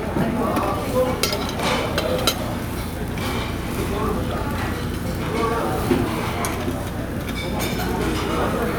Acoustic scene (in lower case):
crowded indoor space